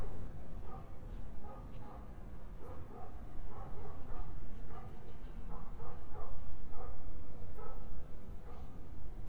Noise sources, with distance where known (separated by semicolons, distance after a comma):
dog barking or whining, far